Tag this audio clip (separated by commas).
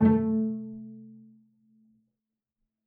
Music, Musical instrument, Bowed string instrument